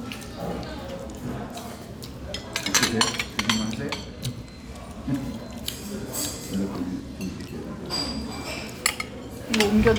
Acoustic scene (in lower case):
restaurant